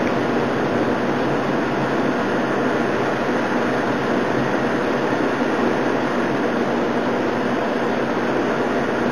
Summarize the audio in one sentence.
Sound of large stream and water